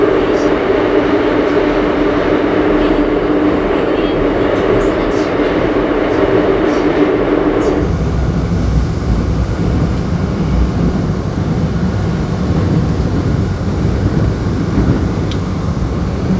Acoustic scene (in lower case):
subway train